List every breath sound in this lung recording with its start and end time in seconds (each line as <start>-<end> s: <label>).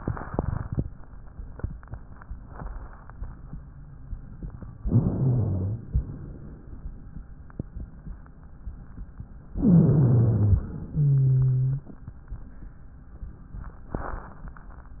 4.82-5.84 s: inhalation
4.82-5.84 s: wheeze
5.90-7.11 s: exhalation
9.50-10.70 s: inhalation
9.50-10.70 s: wheeze
10.74-11.89 s: exhalation
10.74-11.89 s: wheeze